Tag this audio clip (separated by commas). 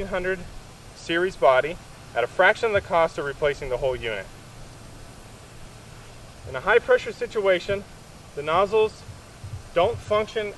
Speech